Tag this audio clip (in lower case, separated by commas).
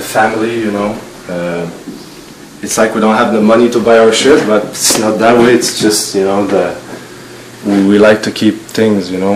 speech, inside a small room